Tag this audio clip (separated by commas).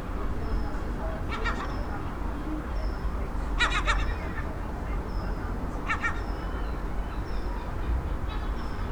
Animal, Gull, Wild animals, Bird